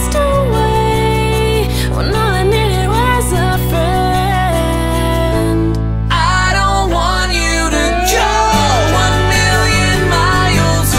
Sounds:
Music

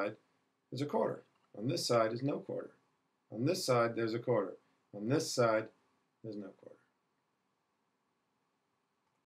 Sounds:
Speech

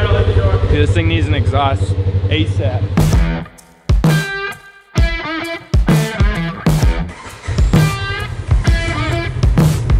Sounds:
driving snowmobile

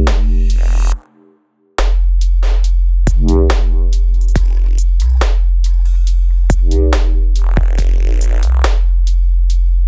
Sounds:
Dubstep, Electronic music, Music

